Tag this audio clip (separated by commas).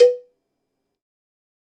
Cowbell, Bell